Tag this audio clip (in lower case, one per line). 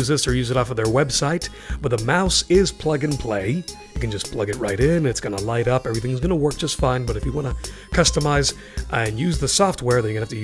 speech
music